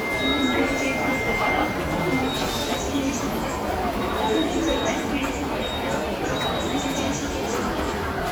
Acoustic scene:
subway station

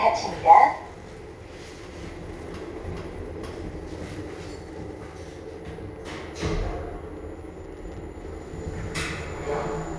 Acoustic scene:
elevator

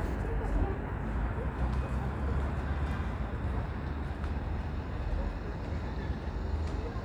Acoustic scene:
residential area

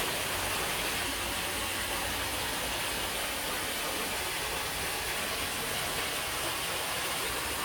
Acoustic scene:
park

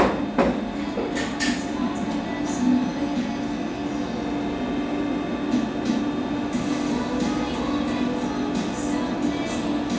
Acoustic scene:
cafe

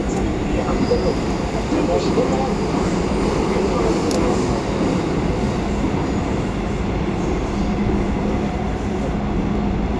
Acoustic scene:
subway train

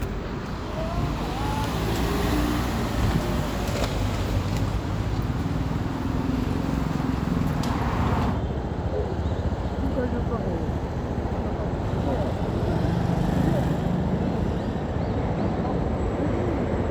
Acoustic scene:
street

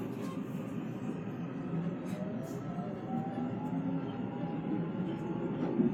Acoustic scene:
subway train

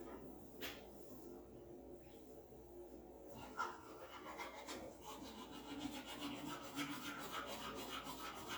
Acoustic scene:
restroom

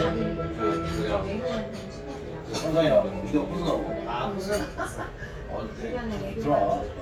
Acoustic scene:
crowded indoor space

